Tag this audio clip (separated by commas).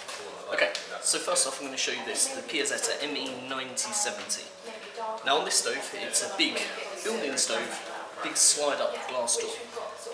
Speech